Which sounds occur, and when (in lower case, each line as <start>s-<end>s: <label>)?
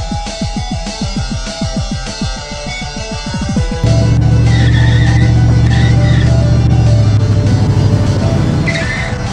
0.0s-9.3s: music
3.8s-9.3s: car
4.5s-5.3s: tire squeal
5.6s-6.3s: tire squeal
8.6s-9.2s: tire squeal